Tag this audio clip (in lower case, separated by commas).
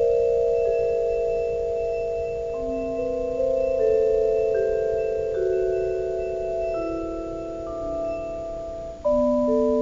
mallet percussion, xylophone, glockenspiel, playing marimba